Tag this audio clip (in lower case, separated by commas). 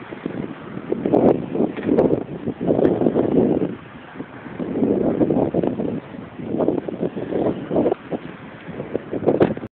wind, wind noise (microphone), wind noise